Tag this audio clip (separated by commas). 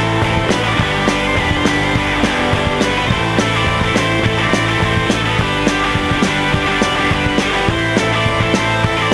Grunge, Music